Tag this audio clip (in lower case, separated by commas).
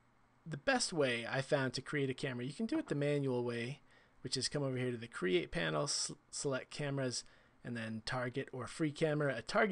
speech